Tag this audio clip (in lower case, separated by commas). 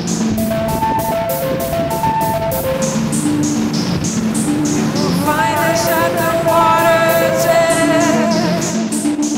music